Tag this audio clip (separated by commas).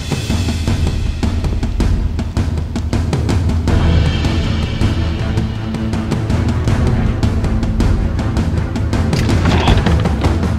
Music